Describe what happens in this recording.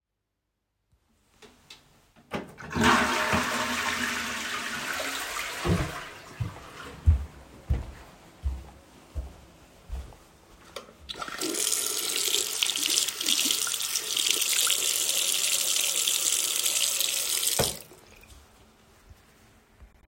I flushed the toilet and then went in the bathroom where I washed my hands.